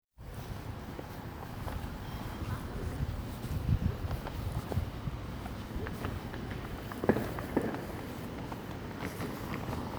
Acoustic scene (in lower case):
residential area